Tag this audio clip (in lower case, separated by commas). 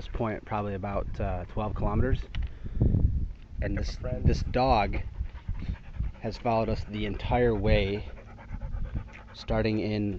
speech, animal